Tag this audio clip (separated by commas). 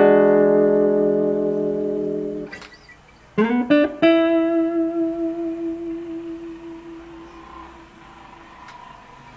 Electric guitar, Plucked string instrument, Musical instrument, Guitar, Music